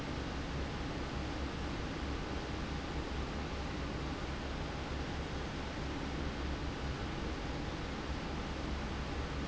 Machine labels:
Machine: fan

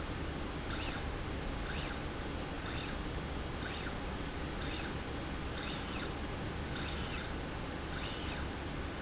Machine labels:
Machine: slide rail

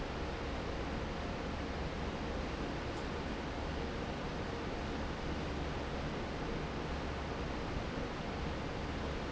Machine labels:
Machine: fan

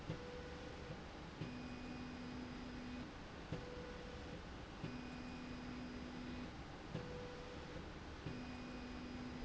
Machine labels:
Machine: slide rail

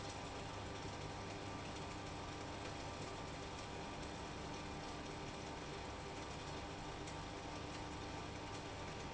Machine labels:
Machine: pump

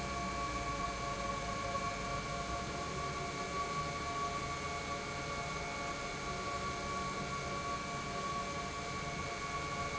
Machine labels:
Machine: pump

